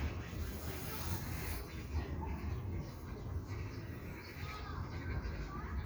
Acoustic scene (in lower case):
park